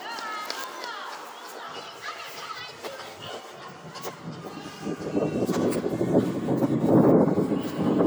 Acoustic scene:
residential area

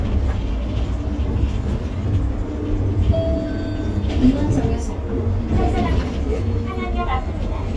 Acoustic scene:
bus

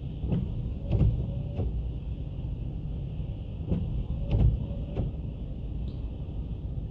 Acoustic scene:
car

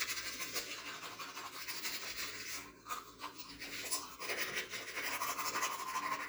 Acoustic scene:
restroom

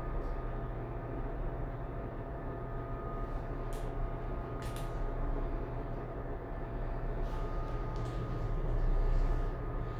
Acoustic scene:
elevator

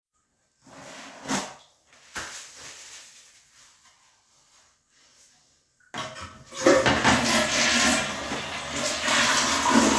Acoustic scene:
restroom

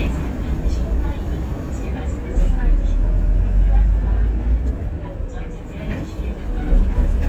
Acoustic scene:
bus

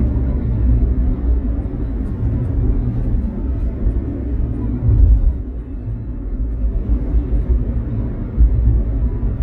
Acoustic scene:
car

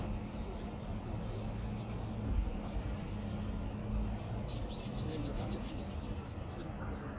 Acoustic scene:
street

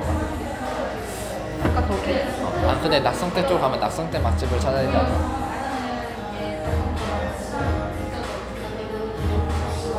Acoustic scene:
cafe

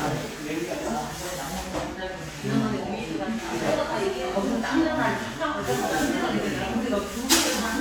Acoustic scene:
crowded indoor space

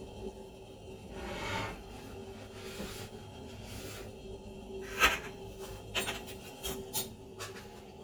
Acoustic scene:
kitchen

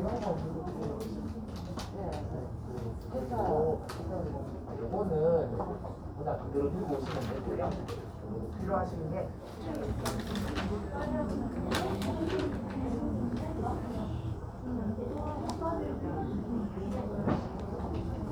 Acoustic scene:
crowded indoor space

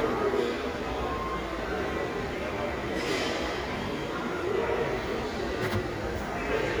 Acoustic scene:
restaurant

